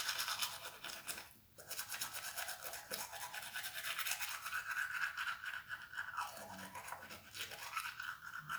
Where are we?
in a restroom